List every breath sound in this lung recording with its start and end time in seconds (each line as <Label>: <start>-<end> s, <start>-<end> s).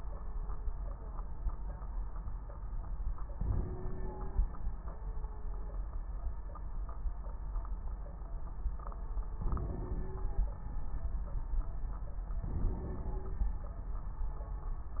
Inhalation: 3.34-4.63 s, 9.45-10.47 s, 12.42-13.45 s
Crackles: 3.34-4.63 s, 9.45-10.47 s, 12.42-13.45 s